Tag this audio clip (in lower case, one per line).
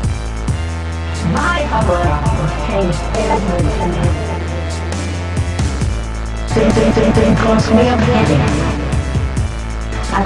dubstep
speech
electronic music
music